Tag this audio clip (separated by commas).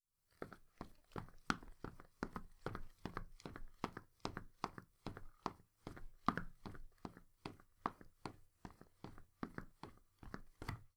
Run